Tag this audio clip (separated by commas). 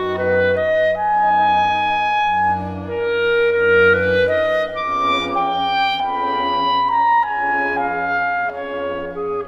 woodwind instrument